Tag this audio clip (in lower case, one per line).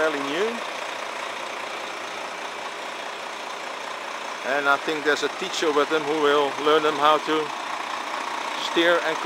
speech
tools